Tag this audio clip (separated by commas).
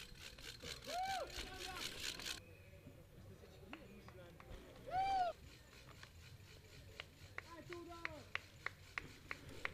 Bicycle, Vehicle, Speech, outside, rural or natural